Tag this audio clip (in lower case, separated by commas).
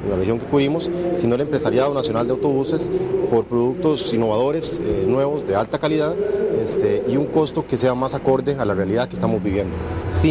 speech